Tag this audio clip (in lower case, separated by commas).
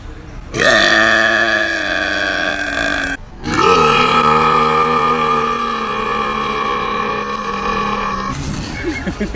people burping